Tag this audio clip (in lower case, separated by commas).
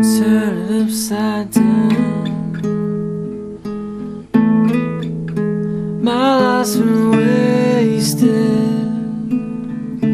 guitar, plucked string instrument, musical instrument, music